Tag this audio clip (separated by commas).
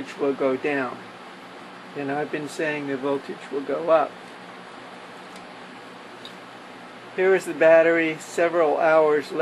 Speech